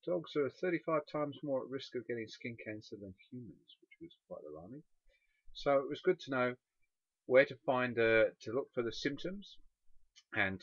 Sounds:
Speech

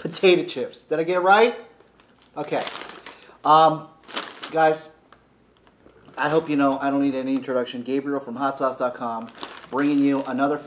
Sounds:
Speech

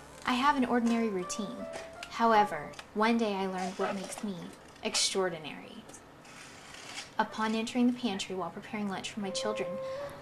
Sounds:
Speech, Music

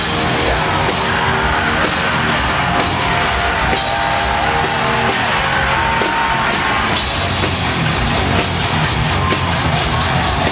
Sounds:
Music

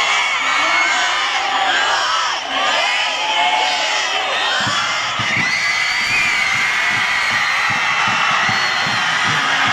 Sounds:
people cheering

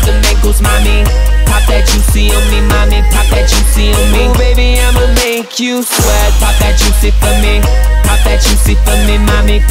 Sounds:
Music of Africa

